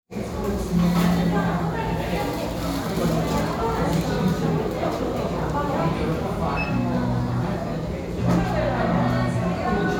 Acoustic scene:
restaurant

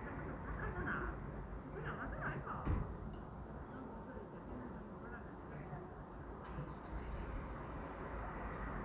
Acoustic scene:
residential area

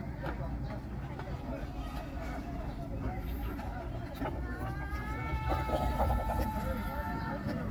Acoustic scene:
park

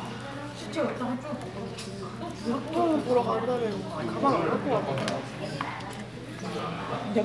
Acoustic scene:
crowded indoor space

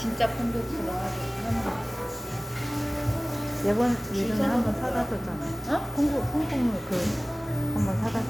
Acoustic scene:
cafe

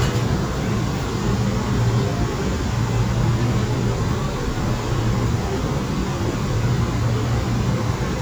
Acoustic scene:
subway train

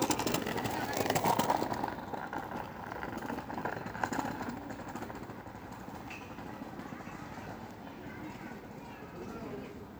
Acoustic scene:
park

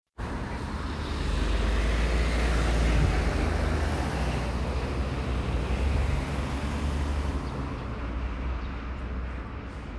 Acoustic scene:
street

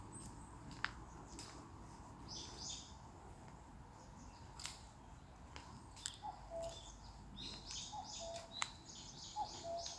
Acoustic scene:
park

